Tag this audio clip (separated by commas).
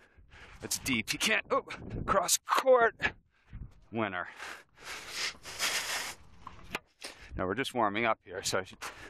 Speech